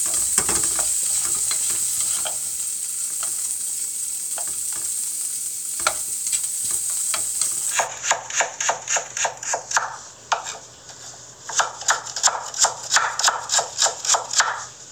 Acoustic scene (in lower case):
kitchen